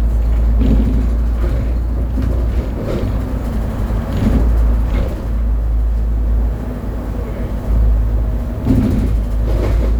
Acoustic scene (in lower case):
bus